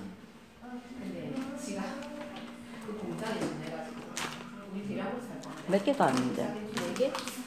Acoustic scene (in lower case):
crowded indoor space